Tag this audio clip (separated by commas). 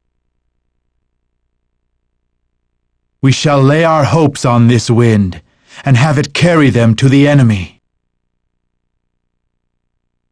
Speech